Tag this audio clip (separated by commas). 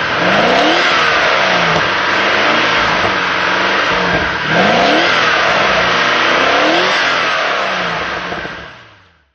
Engine, Idling, Medium engine (mid frequency), Car, vroom